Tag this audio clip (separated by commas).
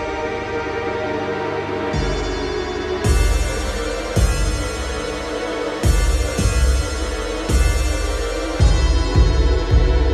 Music, Progressive rock